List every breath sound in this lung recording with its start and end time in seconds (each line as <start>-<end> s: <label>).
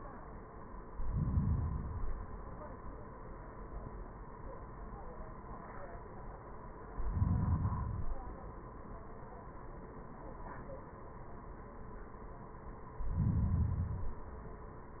0.86-2.36 s: inhalation
6.84-8.34 s: inhalation
12.89-14.39 s: inhalation